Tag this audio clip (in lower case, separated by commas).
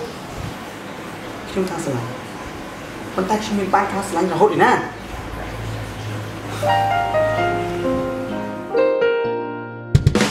speech, music